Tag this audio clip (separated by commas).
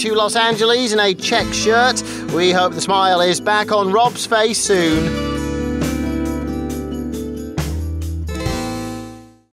Music, Speech